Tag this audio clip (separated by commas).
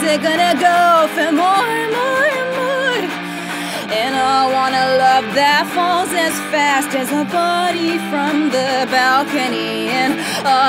Music